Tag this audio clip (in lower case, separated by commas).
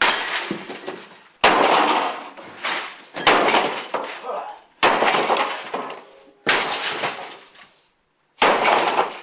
crash